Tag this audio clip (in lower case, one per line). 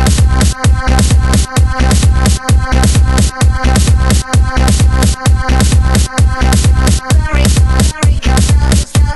music
techno
electronic music